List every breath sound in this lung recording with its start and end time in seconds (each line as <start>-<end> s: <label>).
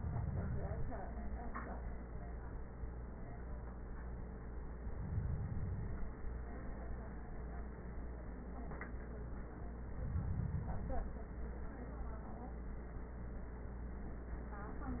No breath sounds were labelled in this clip.